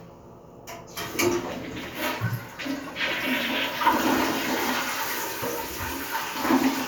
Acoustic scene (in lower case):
restroom